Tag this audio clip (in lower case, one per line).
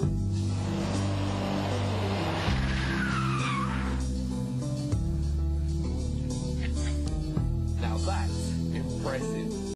motor vehicle (road)
music
car
vehicle
skidding
speech